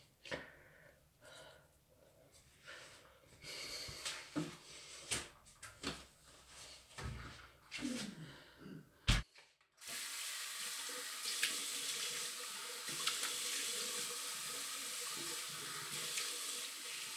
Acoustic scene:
restroom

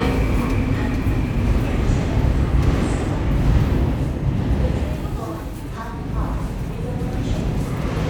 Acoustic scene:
subway station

